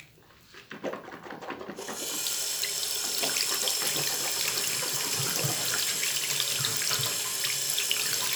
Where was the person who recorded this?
in a restroom